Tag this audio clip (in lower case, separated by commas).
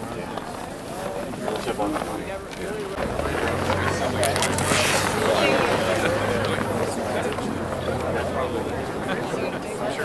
speech